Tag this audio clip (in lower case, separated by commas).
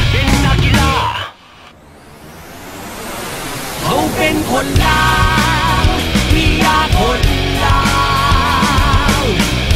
music